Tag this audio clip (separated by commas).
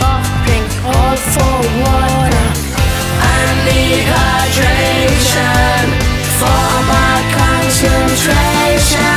Music